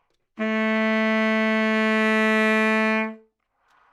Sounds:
Musical instrument, woodwind instrument, Music

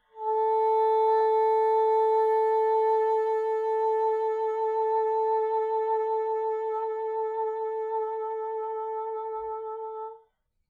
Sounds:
Musical instrument, Music, woodwind instrument

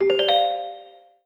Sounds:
Alarm, Ringtone, Telephone

